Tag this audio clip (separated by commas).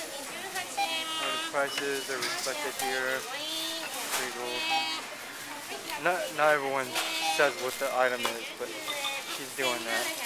Speech